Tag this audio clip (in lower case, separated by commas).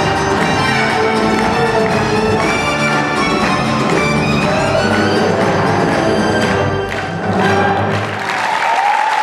music, applause